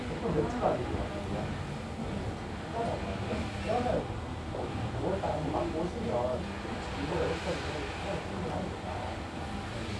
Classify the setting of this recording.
crowded indoor space